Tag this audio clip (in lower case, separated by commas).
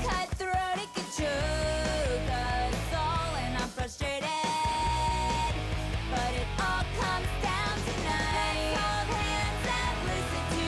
rock and roll, music